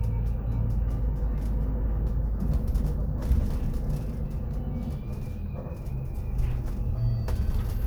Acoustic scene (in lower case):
bus